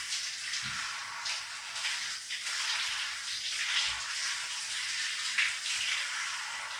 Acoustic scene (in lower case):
restroom